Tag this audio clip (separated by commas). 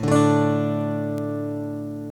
Musical instrument, Plucked string instrument, Strum, Guitar, Acoustic guitar, Music